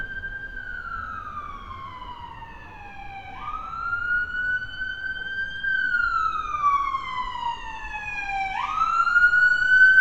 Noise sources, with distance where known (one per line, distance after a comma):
siren, near